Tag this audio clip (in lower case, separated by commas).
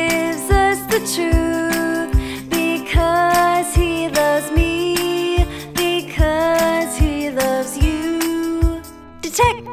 music